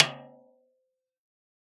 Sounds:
music, musical instrument, drum, percussion, snare drum

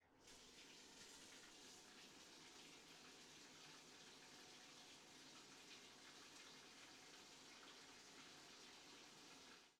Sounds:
bathtub (filling or washing), domestic sounds

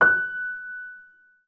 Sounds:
musical instrument, music, keyboard (musical), piano

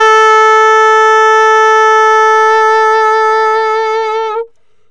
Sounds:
woodwind instrument, music, musical instrument

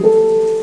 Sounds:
music, piano, musical instrument, keyboard (musical)

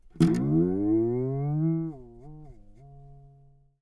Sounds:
guitar, music, musical instrument, plucked string instrument

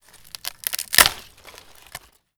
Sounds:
wood

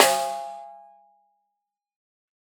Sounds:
drum, snare drum, percussion, music, musical instrument

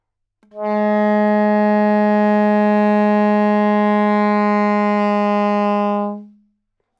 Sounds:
music, woodwind instrument, musical instrument

